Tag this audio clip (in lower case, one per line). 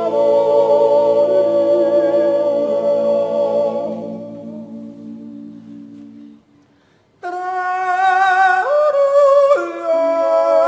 yodelling